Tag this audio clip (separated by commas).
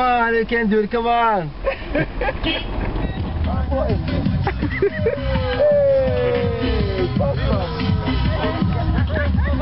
Music, outside, urban or man-made, Speech